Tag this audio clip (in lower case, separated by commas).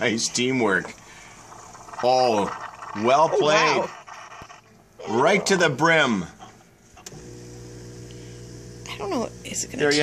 speech